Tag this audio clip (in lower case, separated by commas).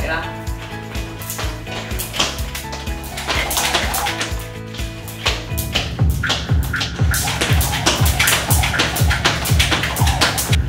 rope skipping